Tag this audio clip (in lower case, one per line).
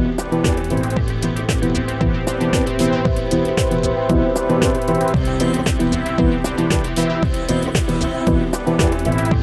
music